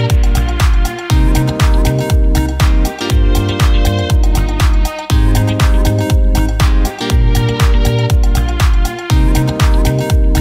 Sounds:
Music

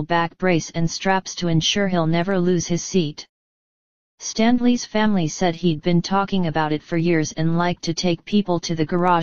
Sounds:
Speech

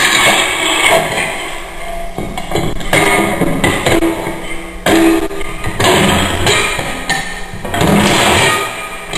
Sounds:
Electric guitar, Plucked string instrument, Musical instrument, Music

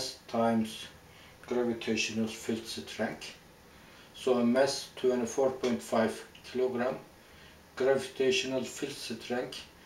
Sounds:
inside a small room, Speech

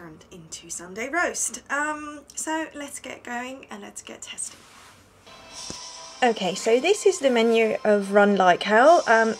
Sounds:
Music, Speech

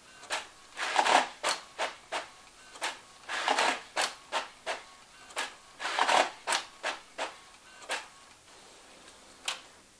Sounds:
Printer

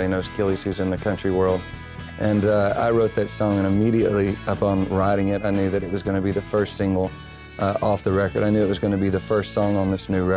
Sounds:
Speech, Music

